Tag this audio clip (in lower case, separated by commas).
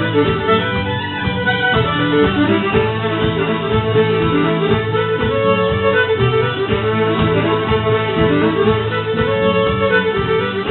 music, fiddle, musical instrument